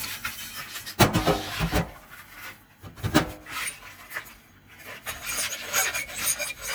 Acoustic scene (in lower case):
kitchen